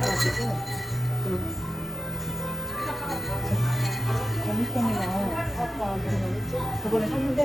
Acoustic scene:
cafe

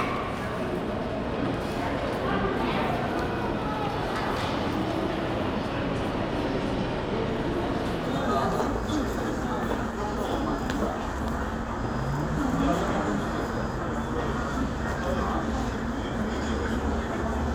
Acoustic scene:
crowded indoor space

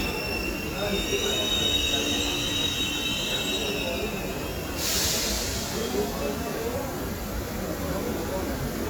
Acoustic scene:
subway station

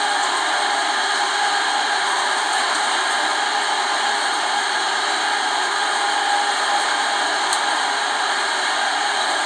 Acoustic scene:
subway train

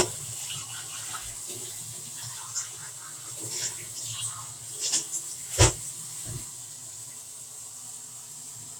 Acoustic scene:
kitchen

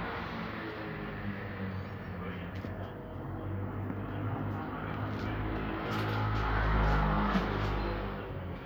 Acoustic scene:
street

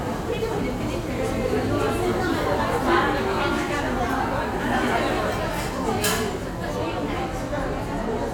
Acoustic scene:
crowded indoor space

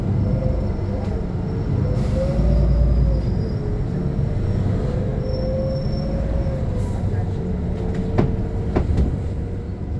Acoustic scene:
bus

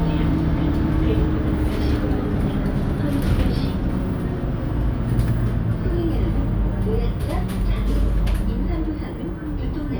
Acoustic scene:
bus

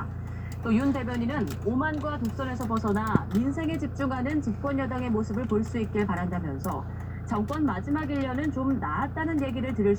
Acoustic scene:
car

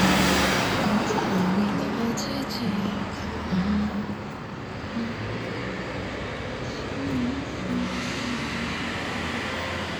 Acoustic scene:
street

